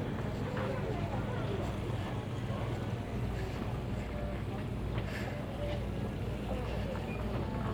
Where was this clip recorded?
in a crowded indoor space